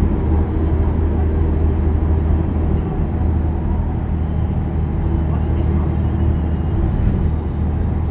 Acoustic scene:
bus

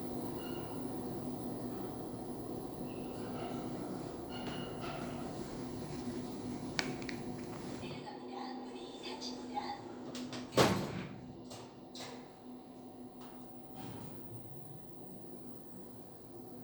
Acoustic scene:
elevator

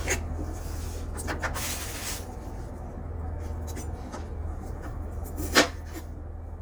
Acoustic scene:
kitchen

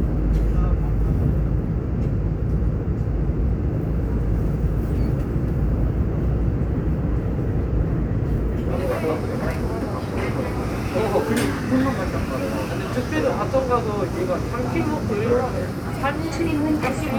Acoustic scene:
subway train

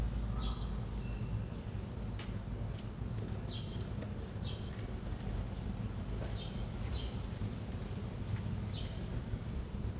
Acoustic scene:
residential area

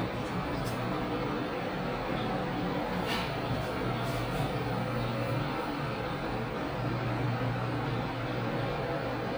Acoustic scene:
elevator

